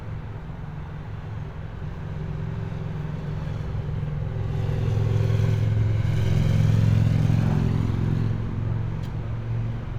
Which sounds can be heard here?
engine of unclear size, unidentified impact machinery